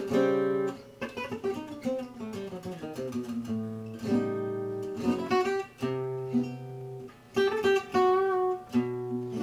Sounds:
Guitar, Musical instrument, Music, Strum, Plucked string instrument

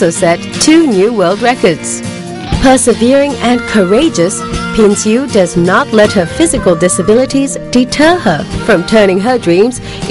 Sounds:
Speech, Female speech, Music

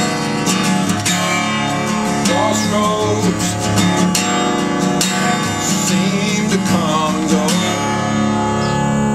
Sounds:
Plucked string instrument, Strum, Guitar, Speech, Musical instrument, Music

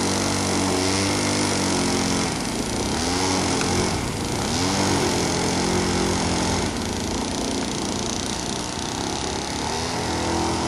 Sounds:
speedboat

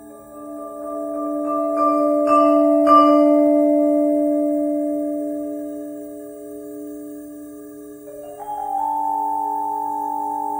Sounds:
Music, playing marimba, xylophone, Musical instrument, Vibraphone

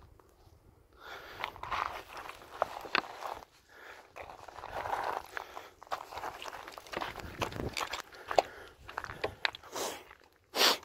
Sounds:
writing on blackboard with chalk

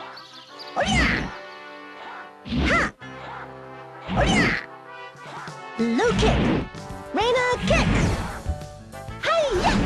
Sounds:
Music, Speech

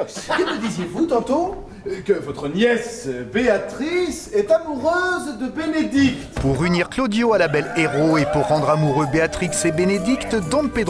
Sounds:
Speech, Music

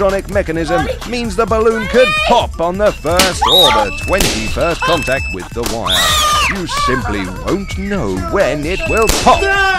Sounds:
Music, Speech

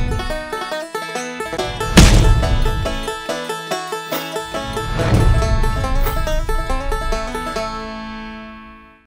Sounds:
Music

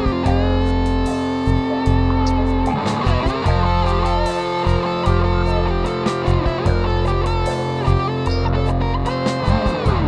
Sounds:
Guitar, Music, Effects unit, Distortion

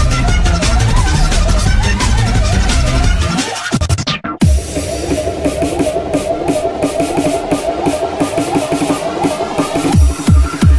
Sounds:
Music

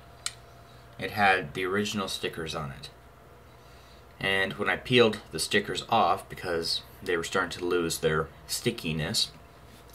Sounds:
Speech

